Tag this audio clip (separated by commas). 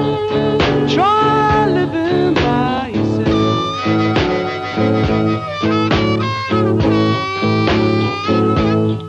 Music